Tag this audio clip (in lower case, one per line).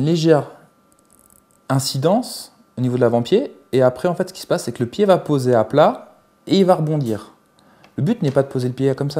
speech
inside a small room